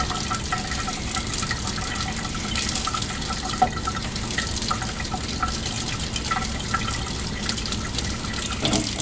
Water runs into a sink and drains